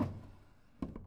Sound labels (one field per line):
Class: drawer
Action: closing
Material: wooden